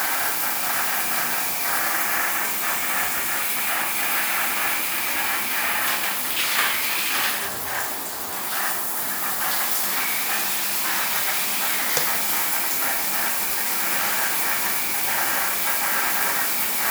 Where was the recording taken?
in a restroom